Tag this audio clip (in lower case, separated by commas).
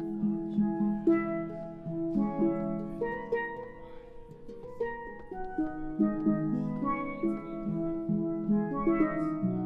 playing steelpan